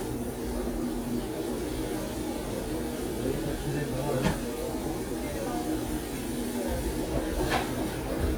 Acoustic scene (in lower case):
cafe